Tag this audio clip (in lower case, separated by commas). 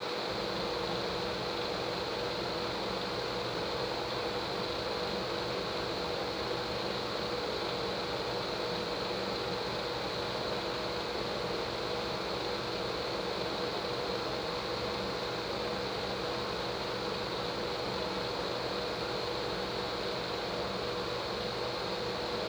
mechanisms, mechanical fan